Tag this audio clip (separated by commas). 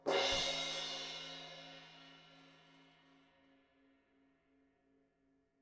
Crash cymbal, Musical instrument, Music, Cymbal, Percussion